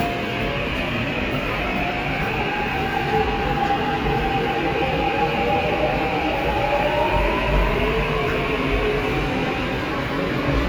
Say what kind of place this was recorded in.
subway station